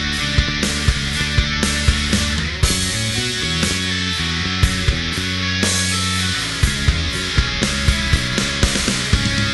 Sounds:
music, heavy metal

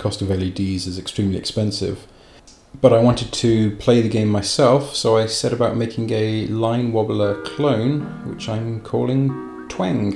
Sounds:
music, speech

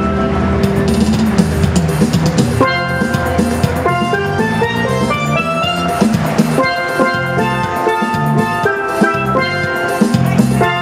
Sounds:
percussion, drum

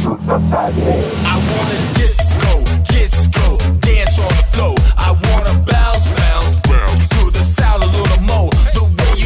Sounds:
music, disco

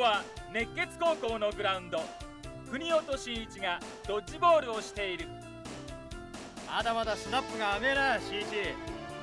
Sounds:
music, speech

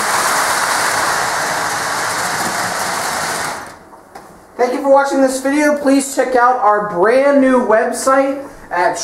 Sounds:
speech, inside a small room, train

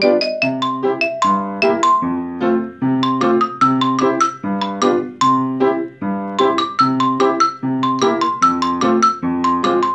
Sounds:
playing glockenspiel

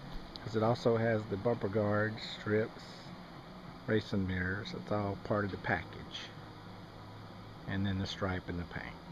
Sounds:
speech

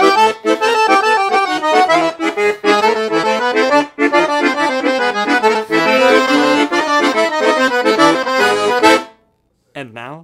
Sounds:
playing accordion

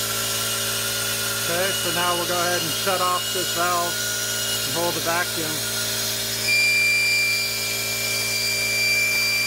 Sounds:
speech, vehicle, engine

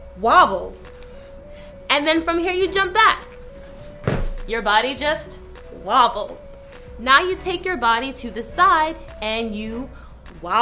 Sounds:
speech, female speech, music

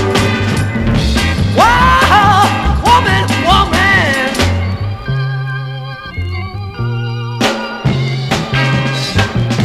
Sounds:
soul music, music, rock music, psychedelic rock

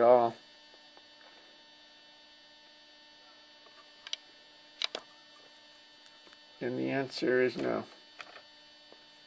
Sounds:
speech

